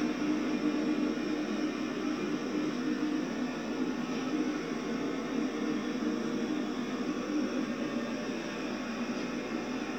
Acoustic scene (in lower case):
subway train